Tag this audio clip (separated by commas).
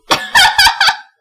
Laughter, Human voice